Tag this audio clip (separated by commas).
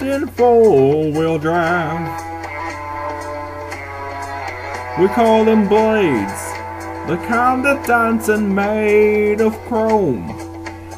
Music